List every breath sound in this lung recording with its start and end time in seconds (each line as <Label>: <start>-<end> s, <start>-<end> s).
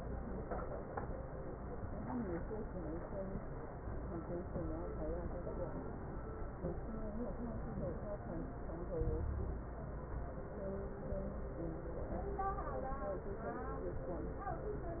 Inhalation: 9.01-9.68 s
Wheeze: 9.01-9.68 s